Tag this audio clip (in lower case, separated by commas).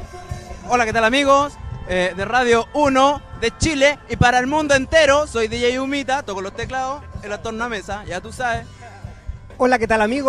music, speech